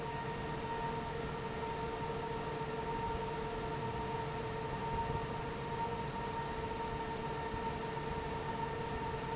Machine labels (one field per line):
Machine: fan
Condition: normal